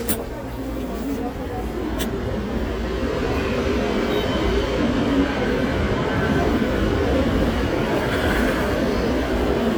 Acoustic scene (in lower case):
subway station